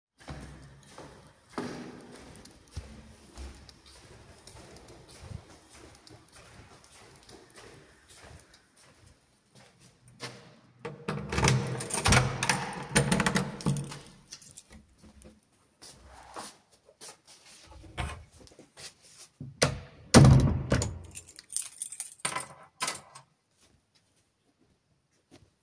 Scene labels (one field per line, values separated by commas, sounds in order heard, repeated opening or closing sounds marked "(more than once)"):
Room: hallway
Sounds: footsteps, keys, door (more than once)